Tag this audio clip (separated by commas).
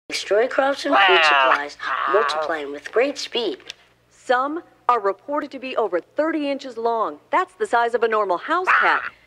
Speech